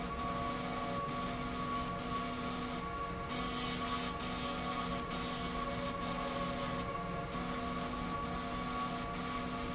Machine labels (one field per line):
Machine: slide rail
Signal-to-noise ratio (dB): -6 dB